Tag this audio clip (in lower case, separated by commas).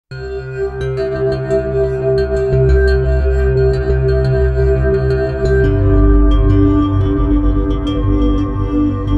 ambient music, music